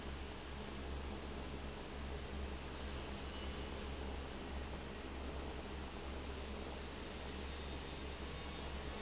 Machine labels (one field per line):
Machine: fan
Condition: abnormal